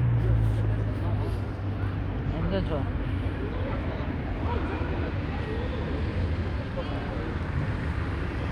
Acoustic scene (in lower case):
street